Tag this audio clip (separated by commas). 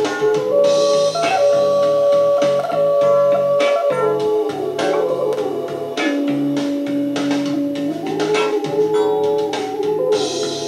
Theremin, Music